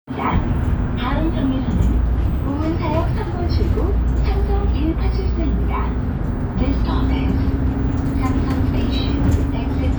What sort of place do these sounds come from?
bus